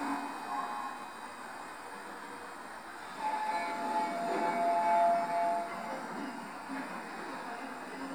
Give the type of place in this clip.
subway station